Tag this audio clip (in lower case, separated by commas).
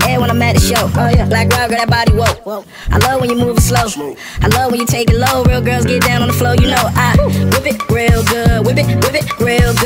music